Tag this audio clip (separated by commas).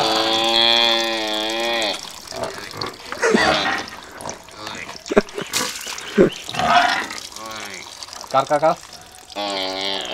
Speech